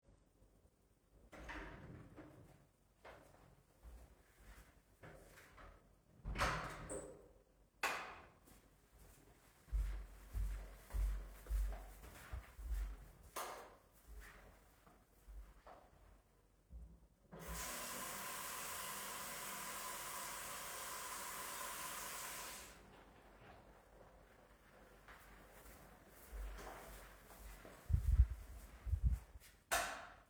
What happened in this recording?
I walk to a door(from outside), open it, walk in, close it again. Turn on the light, walk through the room. Turn on a diffrent light. Turn on the water, turn it off again. Walk back through the room. Turn the light off again.